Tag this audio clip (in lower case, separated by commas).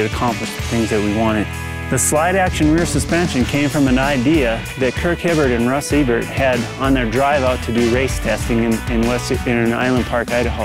music, speech